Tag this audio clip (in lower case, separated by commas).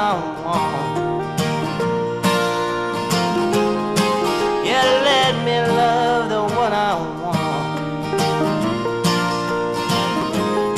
music